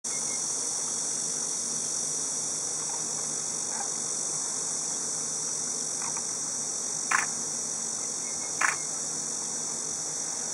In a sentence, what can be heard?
Insects buzz and something creeks